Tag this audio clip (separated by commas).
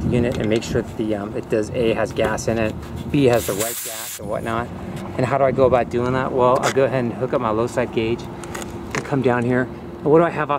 Speech